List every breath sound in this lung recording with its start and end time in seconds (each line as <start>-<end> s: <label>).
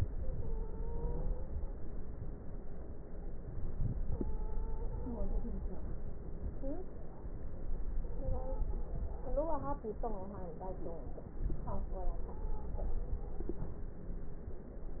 0.17-1.79 s: stridor
3.02-5.21 s: inhalation
4.05-5.53 s: stridor
7.99-8.86 s: stridor
11.96-13.70 s: stridor